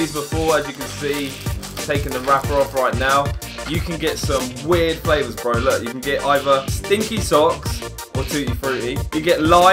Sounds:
Music, Speech

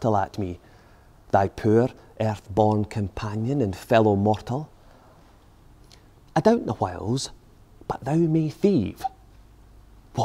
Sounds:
Speech

